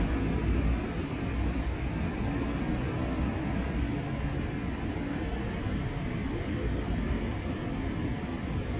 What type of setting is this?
street